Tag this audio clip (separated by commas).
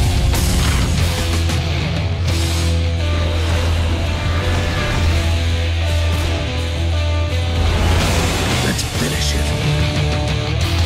Speech, Music